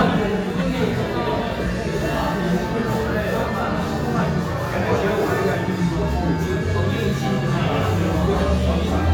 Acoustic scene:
restaurant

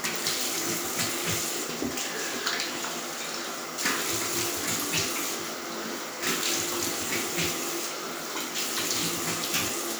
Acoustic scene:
restroom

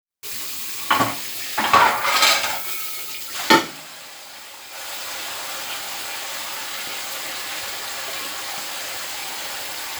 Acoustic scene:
kitchen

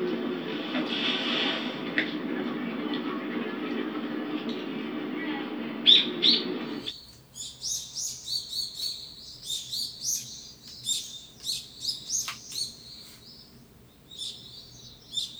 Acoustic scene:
park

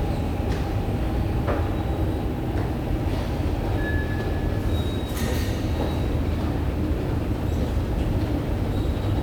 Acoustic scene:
subway station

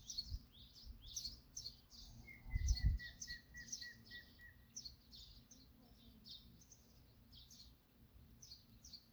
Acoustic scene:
park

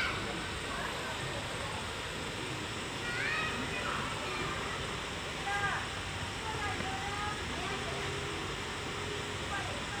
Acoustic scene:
residential area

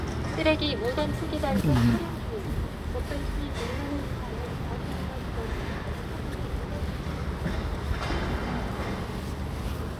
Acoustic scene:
residential area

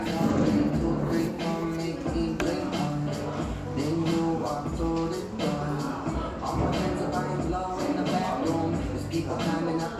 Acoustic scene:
crowded indoor space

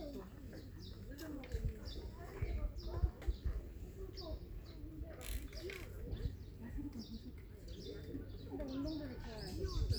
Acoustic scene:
park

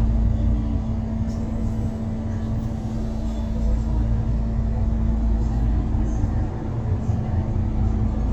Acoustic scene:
bus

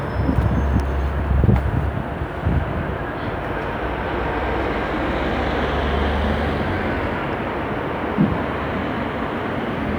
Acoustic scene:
street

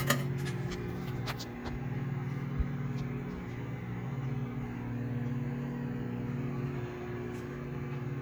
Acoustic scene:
kitchen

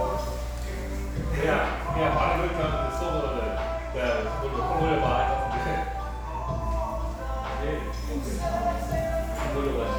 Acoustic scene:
restaurant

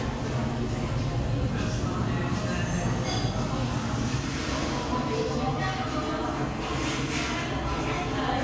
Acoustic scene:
crowded indoor space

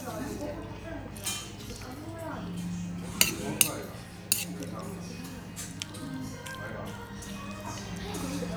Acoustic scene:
restaurant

